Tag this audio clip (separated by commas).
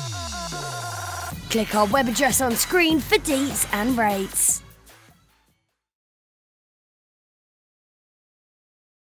Speech, Music